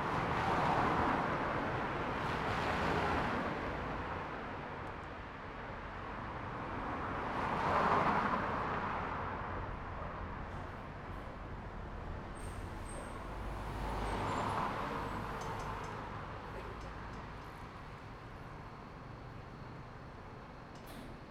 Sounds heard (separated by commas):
bus brakes, bus, bus engine idling, bus engine accelerating, bus compressor, car, car wheels rolling